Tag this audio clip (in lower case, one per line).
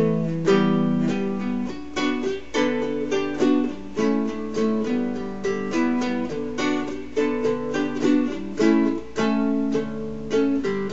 plucked string instrument
music
musical instrument
ukulele